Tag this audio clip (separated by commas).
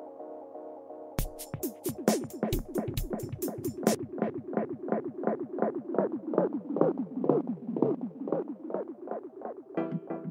Music, Echo